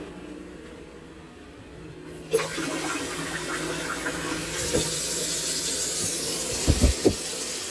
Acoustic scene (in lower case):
kitchen